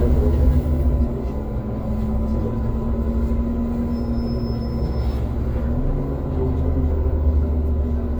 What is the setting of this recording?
bus